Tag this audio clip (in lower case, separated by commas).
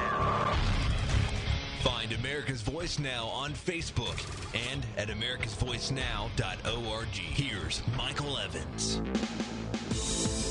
speech, music